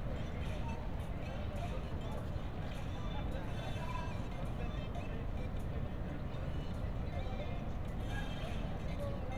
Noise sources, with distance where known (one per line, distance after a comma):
music from an unclear source, far
person or small group talking, far